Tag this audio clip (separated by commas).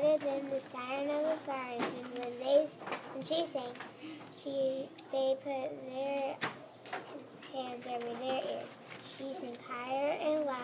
Speech